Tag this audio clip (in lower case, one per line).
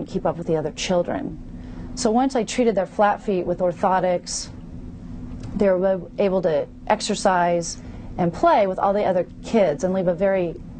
speech
inside a small room